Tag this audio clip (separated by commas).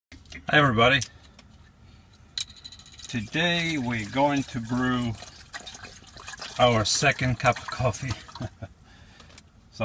Speech, Liquid